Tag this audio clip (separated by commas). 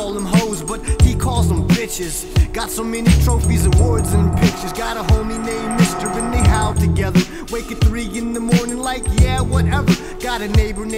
Music